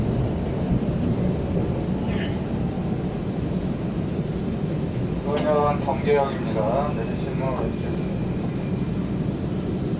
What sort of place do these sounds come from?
subway train